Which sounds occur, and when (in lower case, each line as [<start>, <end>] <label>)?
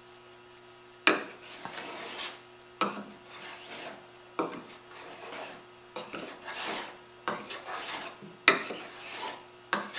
[0.00, 9.95] mechanisms
[0.22, 0.36] generic impact sounds
[1.04, 1.11] generic impact sounds
[1.04, 2.33] filing (rasp)
[2.77, 2.85] generic impact sounds
[2.79, 3.97] filing (rasp)
[4.37, 4.50] generic impact sounds
[4.38, 5.72] filing (rasp)
[5.94, 6.94] filing (rasp)
[7.23, 7.38] generic impact sounds
[7.28, 8.13] filing (rasp)
[8.43, 8.58] generic impact sounds
[8.46, 9.35] filing (rasp)
[9.69, 9.86] generic impact sounds
[9.70, 9.95] filing (rasp)